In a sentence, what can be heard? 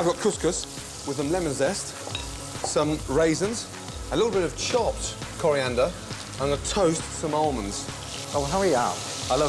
A person talks nearby as food sizzles on a pan